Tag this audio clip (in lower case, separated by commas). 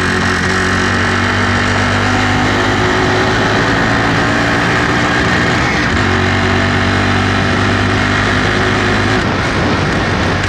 motor vehicle (road), vehicle